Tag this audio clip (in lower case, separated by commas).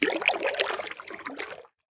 splash, liquid